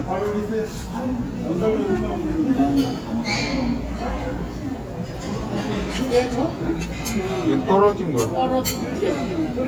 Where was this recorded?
in a restaurant